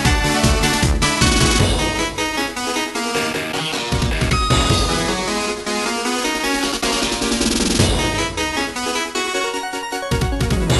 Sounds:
music

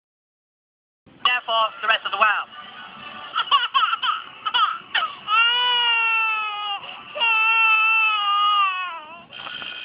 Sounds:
infant cry, speech, music

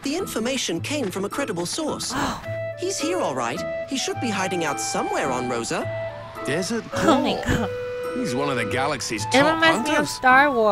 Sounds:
speech, music

